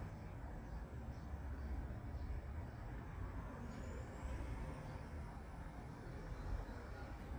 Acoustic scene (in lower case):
residential area